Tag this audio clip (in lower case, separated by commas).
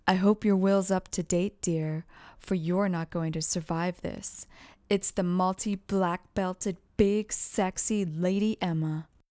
human voice, female speech, speech